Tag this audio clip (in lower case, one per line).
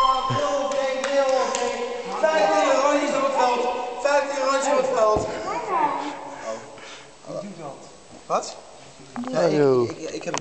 speech